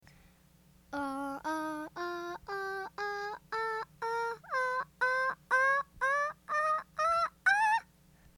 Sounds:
Singing, Human voice

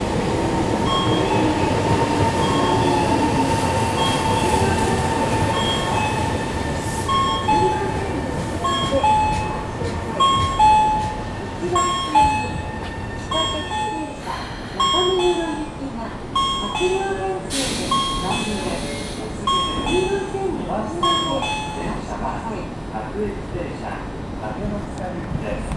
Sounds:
Vehicle, Rail transport, underground

